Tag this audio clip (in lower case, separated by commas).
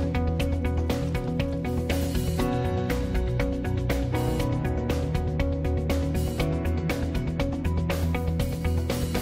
music